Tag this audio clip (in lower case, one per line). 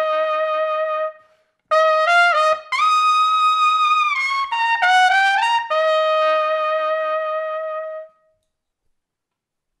playing cornet